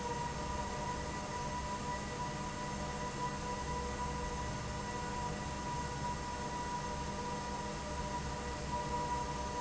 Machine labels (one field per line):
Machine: fan